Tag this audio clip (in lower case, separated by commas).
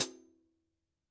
music, cymbal, percussion, hi-hat, musical instrument